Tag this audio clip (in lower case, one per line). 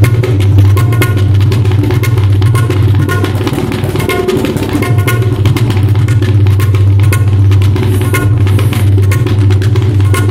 playing tabla